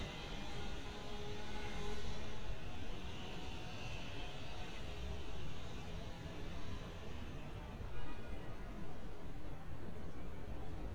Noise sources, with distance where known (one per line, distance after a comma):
engine of unclear size, near
car horn, far